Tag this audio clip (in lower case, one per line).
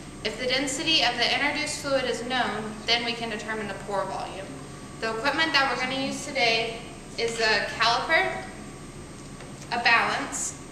speech